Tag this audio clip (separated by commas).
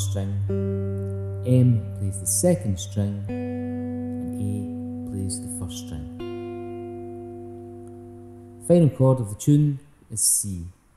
Music, Plucked string instrument, Speech, Guitar, Musical instrument